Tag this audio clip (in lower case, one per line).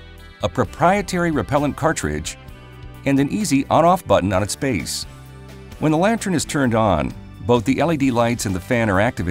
music
speech